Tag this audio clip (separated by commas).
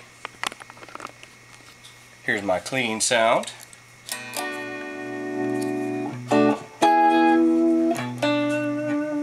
Speech, Music